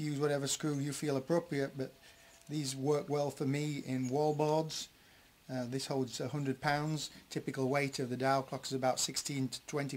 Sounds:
speech

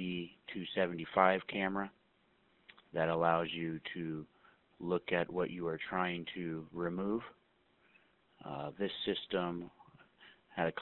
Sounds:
speech

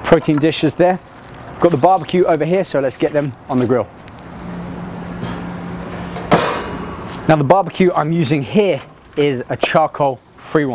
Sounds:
speech, outside, urban or man-made

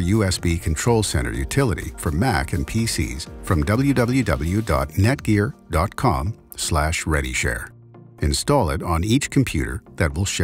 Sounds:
music, speech

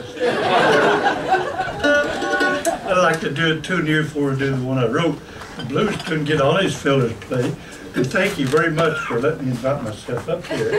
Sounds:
speech, music

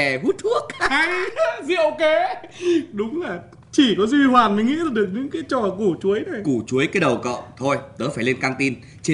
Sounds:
speech

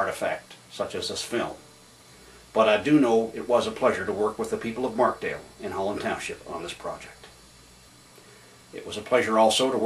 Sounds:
speech

